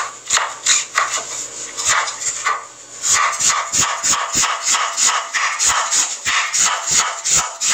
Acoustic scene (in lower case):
kitchen